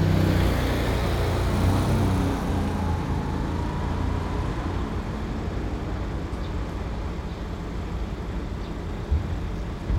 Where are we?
in a residential area